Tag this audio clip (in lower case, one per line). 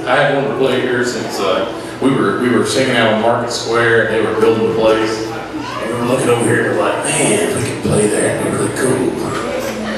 speech